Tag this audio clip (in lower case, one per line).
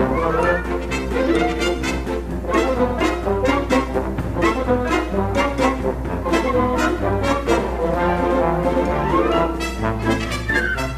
brass instrument